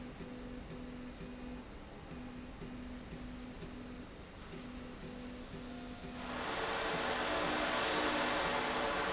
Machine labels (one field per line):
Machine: slide rail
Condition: normal